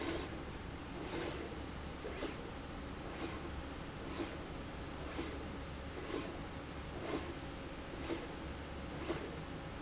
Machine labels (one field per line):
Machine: slide rail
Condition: abnormal